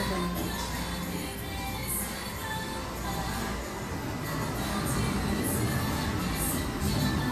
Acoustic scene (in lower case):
restaurant